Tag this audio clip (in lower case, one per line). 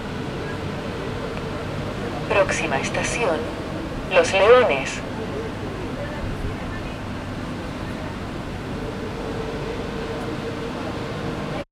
rail transport
metro
vehicle